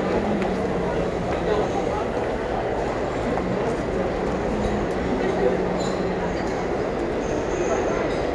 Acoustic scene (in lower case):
restaurant